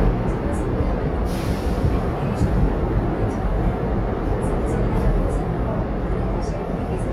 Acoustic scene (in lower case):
subway train